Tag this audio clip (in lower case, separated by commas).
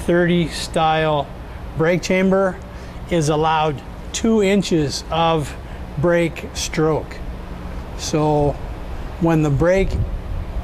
speech